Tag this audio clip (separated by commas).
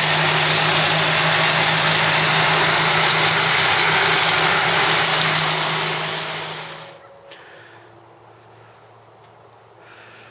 Lawn mower